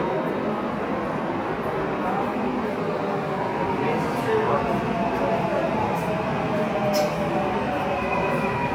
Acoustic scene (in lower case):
subway station